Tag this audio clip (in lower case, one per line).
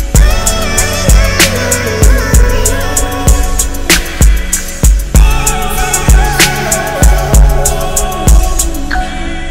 music